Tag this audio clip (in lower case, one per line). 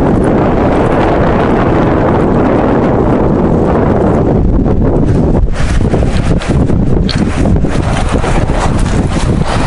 outside, rural or natural